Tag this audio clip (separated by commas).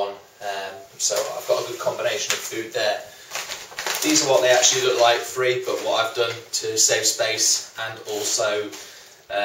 inside a small room, Speech